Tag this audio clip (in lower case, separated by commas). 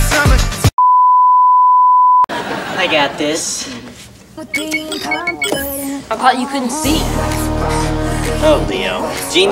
music, speech